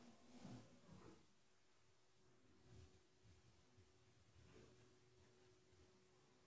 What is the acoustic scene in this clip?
elevator